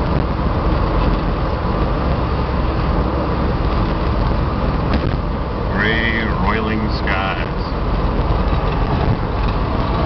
A vehicle motor is present, then an adult male speaks